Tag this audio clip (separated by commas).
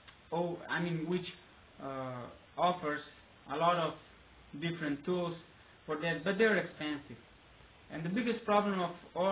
Speech